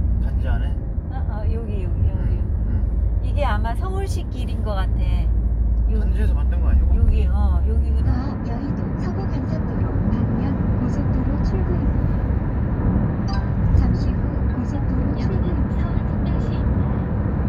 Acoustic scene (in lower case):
car